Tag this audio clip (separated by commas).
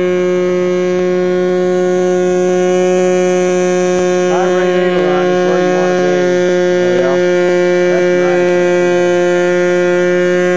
Mains hum, Hum